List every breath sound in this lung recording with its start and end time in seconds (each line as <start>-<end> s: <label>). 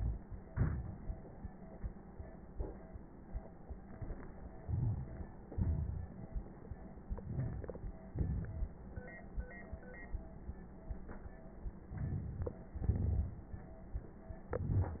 0.45-1.59 s: exhalation
0.45-1.59 s: crackles
4.35-5.47 s: crackles
4.35-5.51 s: inhalation
5.49-7.08 s: exhalation
5.49-7.08 s: crackles
7.09-8.09 s: inhalation
7.09-8.09 s: crackles
8.09-9.23 s: exhalation
8.09-9.23 s: crackles
11.80-12.75 s: inhalation
11.80-12.75 s: crackles
12.75-13.96 s: exhalation
12.75-13.96 s: crackles